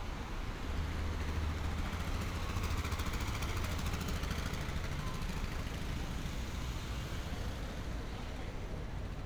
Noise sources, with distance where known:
engine of unclear size

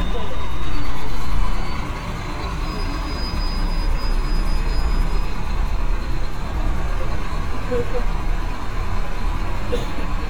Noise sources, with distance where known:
large-sounding engine, near

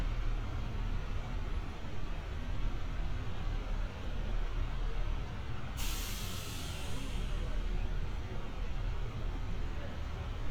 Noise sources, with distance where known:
large-sounding engine

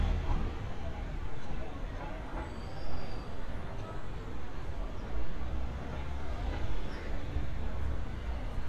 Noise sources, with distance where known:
large-sounding engine, far
non-machinery impact

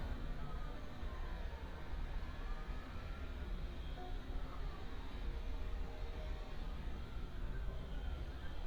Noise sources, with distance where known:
siren, far

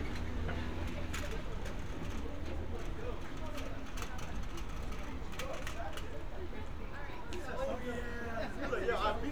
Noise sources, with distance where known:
person or small group talking

